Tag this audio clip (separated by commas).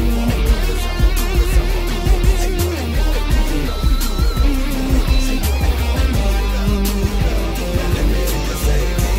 Musical instrument, Music, Bass guitar, Plucked string instrument, Guitar